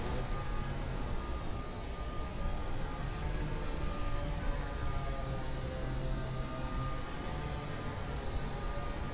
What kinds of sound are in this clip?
chainsaw